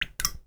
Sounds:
Liquid, Drip

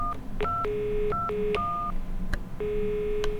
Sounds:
Alarm, Telephone

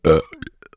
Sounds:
eructation

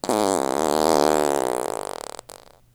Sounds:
Fart

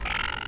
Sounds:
Animal, Wild animals, Bird

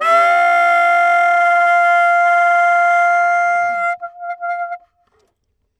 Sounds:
woodwind instrument, Musical instrument, Music

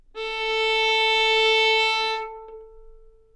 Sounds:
Music, Musical instrument, Bowed string instrument

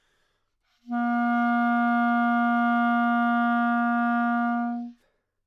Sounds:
Wind instrument, Musical instrument, Music

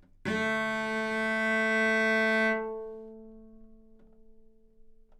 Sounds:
Music, Bowed string instrument, Musical instrument

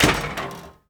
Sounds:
Tools

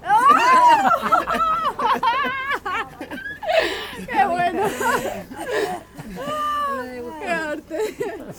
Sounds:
Human voice, Laughter

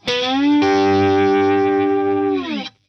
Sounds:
Guitar, Music, Plucked string instrument, Musical instrument

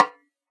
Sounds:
Music, Drum, Musical instrument, Percussion, Snare drum

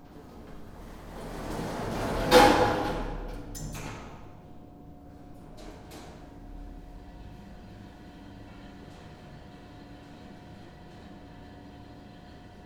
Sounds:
Sliding door, Door, home sounds

